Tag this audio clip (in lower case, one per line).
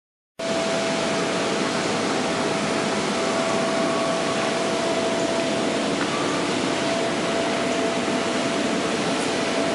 waterfall